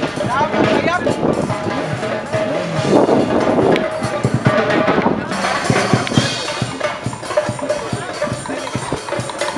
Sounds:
Music, Speech

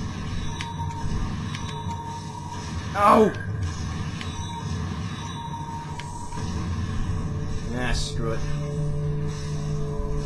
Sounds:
Music, Speech

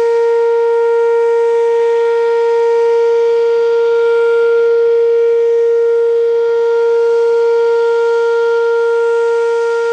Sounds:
Civil defense siren, Siren

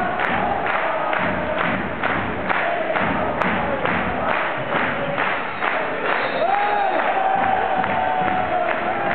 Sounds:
Music, Male singing

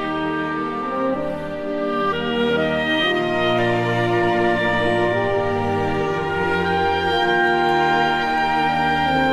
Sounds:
playing oboe

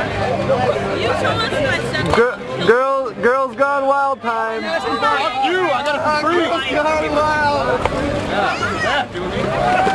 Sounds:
Music, Speech

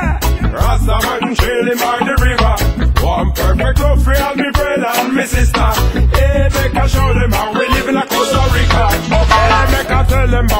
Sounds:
Music

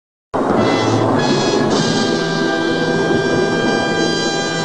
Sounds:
Music

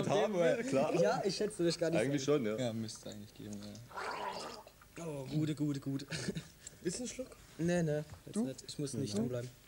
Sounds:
Speech

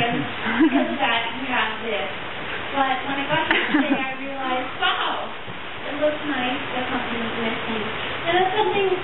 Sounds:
Speech, Female speech

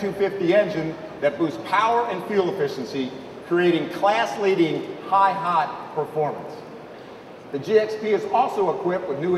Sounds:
Speech

